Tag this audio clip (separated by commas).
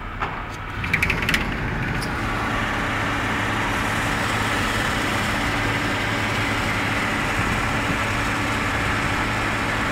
Vibration